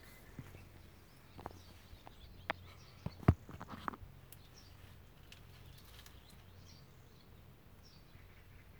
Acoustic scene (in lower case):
park